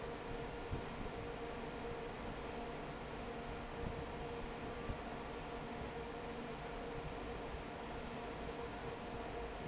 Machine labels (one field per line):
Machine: fan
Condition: normal